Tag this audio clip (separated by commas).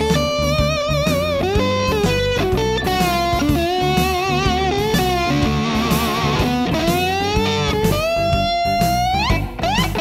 Music, Tapping (guitar technique)